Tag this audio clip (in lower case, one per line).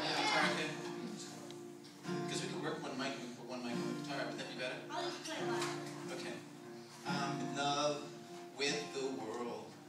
speech
music